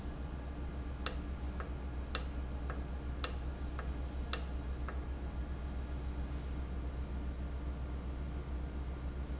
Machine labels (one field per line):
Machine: valve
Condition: normal